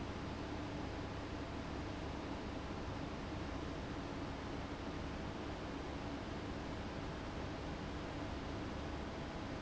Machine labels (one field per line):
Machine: fan